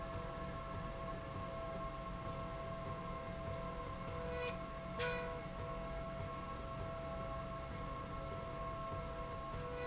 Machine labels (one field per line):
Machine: slide rail